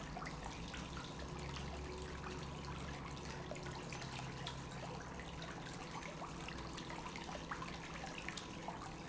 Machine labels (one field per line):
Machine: pump